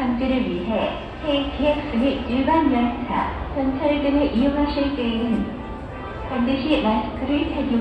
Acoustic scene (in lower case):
subway station